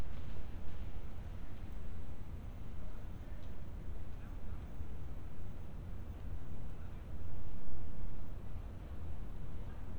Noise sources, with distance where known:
background noise

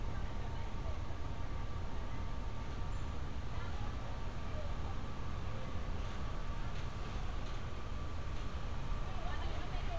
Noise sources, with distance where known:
engine of unclear size; person or small group talking, far

